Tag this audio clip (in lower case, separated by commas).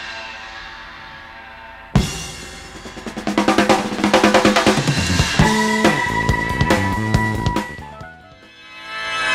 drum roll, percussion, bass drum, drum kit, drum, snare drum, rimshot